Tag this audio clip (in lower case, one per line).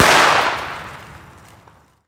explosion